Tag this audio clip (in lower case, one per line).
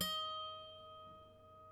music
musical instrument
harp